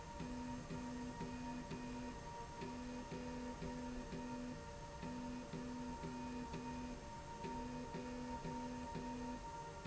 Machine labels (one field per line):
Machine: slide rail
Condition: normal